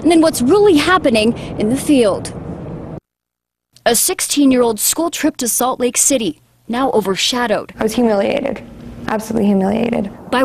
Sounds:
Speech

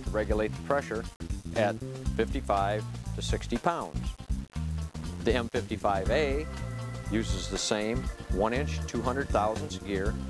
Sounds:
Music, Speech

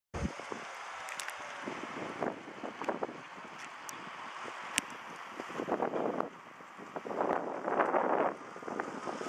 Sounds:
Wind

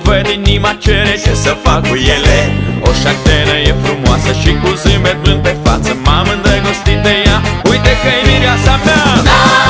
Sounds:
Music

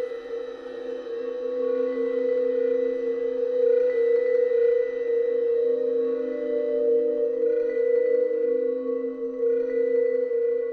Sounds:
Percussion

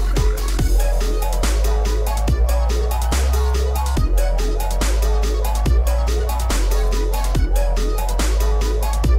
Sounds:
Music, Electronic music

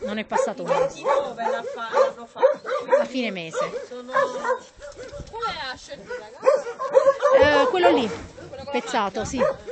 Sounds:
Speech, Animal, Dog

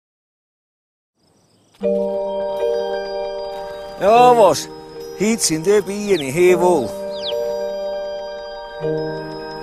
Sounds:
Mallet percussion, xylophone, Glockenspiel

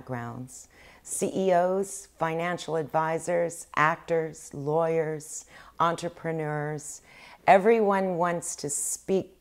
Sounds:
Narration, Speech, woman speaking

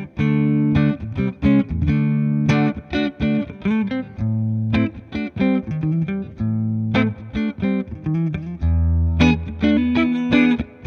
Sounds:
Guitar, Musical instrument, Plucked string instrument

